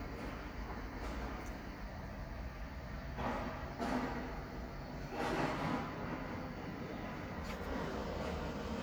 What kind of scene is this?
residential area